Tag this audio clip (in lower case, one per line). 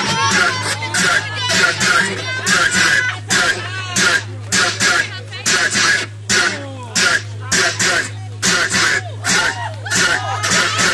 outside, rural or natural
speech
music